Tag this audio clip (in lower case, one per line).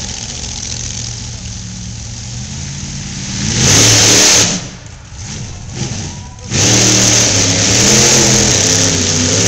truck
vehicle